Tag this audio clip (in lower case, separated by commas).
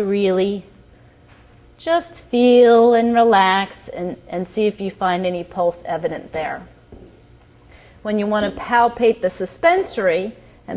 speech